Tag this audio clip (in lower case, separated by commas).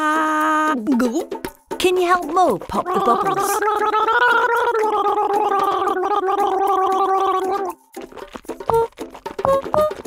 music, speech